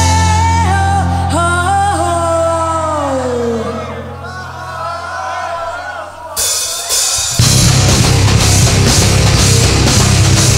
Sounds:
music

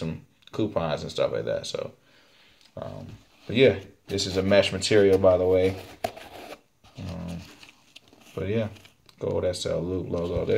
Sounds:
speech

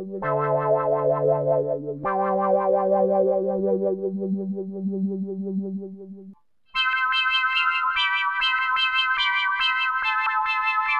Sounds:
music, musical instrument, piano, keyboard (musical), electric piano, synthesizer

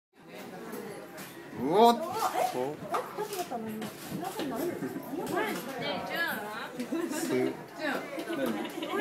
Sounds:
chatter, inside a large room or hall, speech

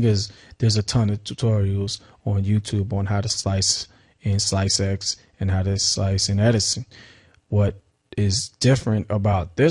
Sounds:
speech

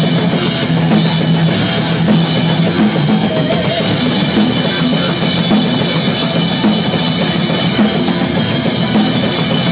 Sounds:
soundtrack music, music

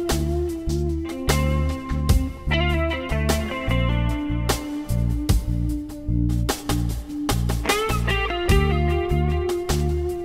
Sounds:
music

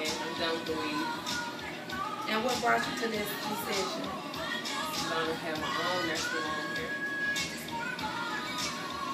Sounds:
speech, music

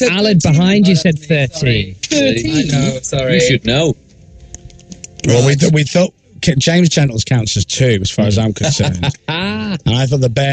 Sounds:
speech, radio

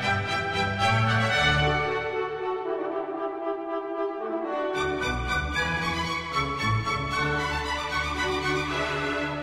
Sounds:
orchestra, music

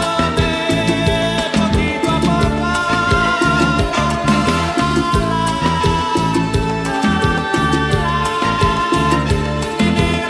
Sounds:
singing, salsa music

